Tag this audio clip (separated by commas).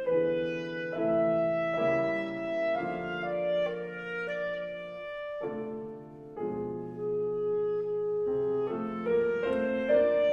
Clarinet